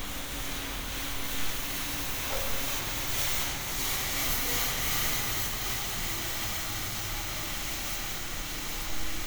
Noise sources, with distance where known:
unidentified powered saw, far

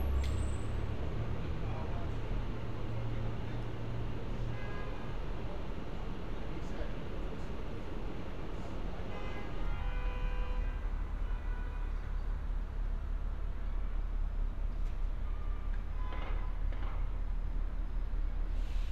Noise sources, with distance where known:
car horn

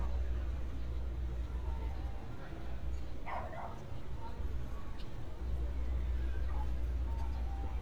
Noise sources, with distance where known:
unidentified human voice, far; dog barking or whining, far

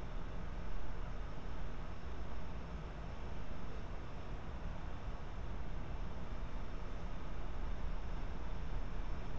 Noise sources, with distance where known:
engine of unclear size, near

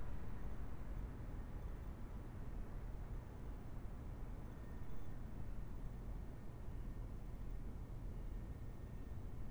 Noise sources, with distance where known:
background noise

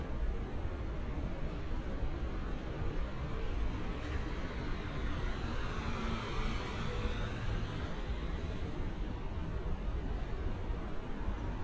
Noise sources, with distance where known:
medium-sounding engine

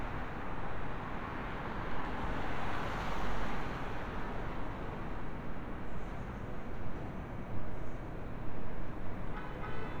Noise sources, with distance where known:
car horn, far

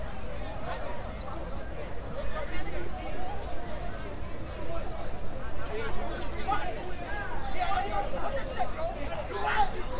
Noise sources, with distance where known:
person or small group shouting, near

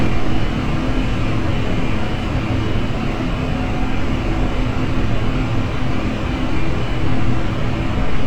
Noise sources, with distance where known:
engine of unclear size, near

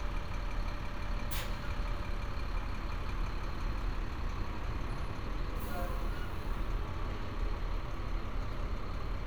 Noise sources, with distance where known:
large-sounding engine, near

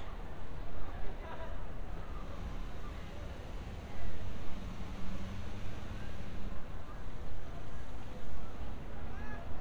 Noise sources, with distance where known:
person or small group talking

